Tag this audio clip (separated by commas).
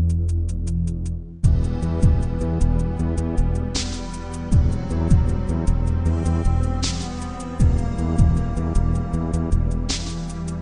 Music